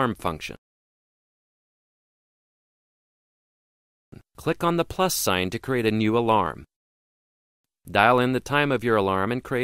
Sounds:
Speech

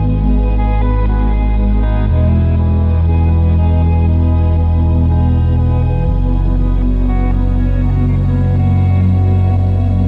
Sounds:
Ambient music

